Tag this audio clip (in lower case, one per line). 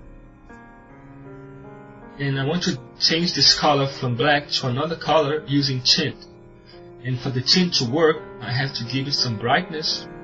monologue